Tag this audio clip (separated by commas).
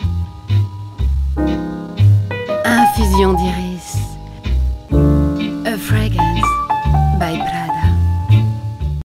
Speech, Music